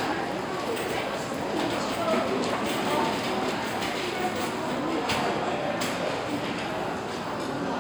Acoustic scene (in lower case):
restaurant